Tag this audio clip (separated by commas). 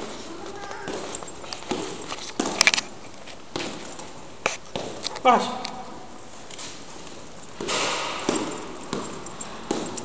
Speech, footsteps